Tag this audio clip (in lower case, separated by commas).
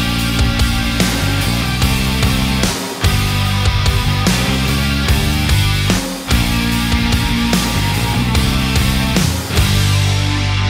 guitar, music, electric guitar, bass guitar, plucked string instrument, musical instrument, strum